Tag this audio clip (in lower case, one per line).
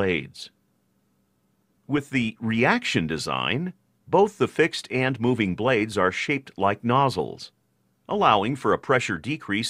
speech